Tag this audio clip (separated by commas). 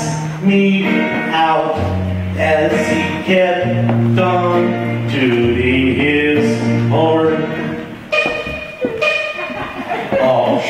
Beep, Music